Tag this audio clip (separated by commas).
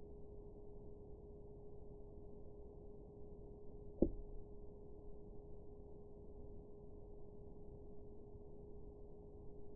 Silence